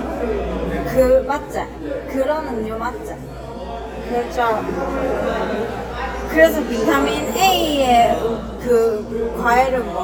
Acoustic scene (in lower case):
cafe